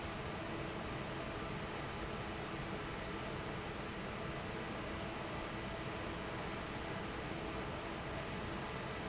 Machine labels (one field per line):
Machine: fan